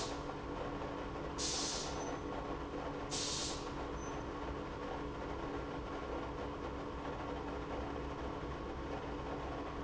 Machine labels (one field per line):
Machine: pump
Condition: abnormal